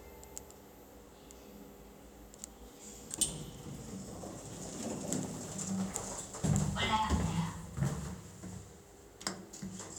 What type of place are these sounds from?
elevator